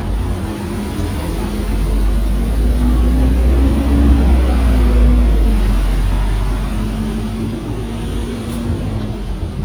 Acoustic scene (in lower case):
street